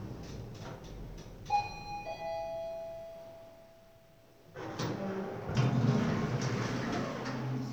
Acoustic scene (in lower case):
elevator